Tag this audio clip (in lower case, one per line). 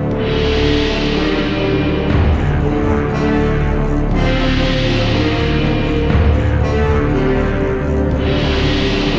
soundtrack music
music